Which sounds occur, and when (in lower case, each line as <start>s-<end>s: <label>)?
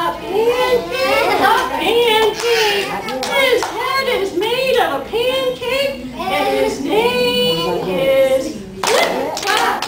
0.0s-0.2s: speech
0.0s-3.0s: female speech
0.0s-9.8s: mechanisms
0.5s-1.3s: kid speaking
1.2s-1.6s: giggle
1.6s-1.8s: speech
2.3s-3.0s: human voice
2.3s-2.5s: clapping
2.8s-3.6s: speech
3.0s-3.1s: clapping
3.2s-3.3s: clapping
3.2s-6.0s: female speech
3.6s-3.7s: clapping
3.8s-5.2s: speech
6.1s-8.6s: female speech
6.1s-6.8s: speech
7.5s-8.0s: speech
8.8s-9.8s: female speech
8.8s-9.1s: clapping
8.8s-9.3s: speech
9.3s-9.6s: clapping
9.8s-9.8s: clapping